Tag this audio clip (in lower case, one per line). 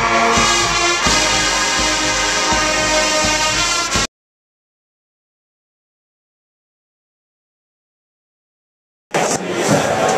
music